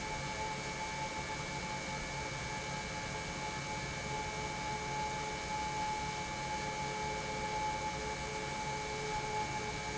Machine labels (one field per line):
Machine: pump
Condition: normal